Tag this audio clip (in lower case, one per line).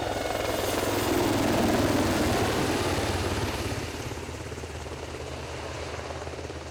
aircraft
vehicle